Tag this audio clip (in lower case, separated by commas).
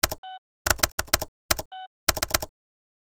domestic sounds, typing, computer keyboard